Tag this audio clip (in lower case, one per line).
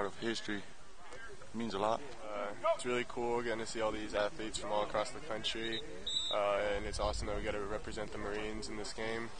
speech